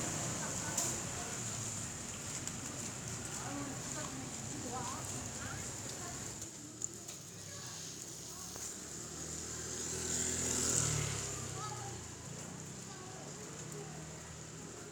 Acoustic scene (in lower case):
residential area